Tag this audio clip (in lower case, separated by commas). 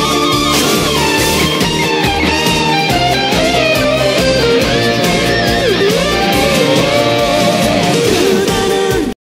musical instrument, plucked string instrument, music, guitar, electric guitar, strum